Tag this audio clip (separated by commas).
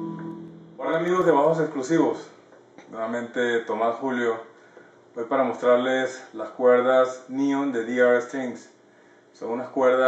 Music, Speech